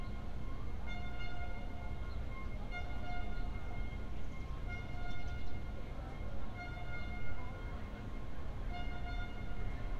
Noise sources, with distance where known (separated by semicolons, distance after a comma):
unidentified alert signal, far